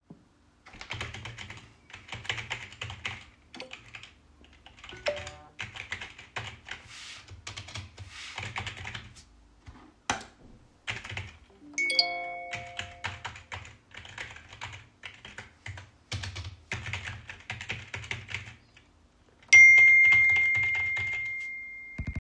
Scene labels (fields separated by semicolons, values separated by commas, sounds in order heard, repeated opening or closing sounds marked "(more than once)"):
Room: office; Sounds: keyboard typing, phone ringing